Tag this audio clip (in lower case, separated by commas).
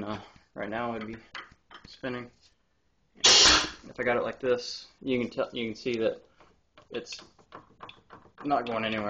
speech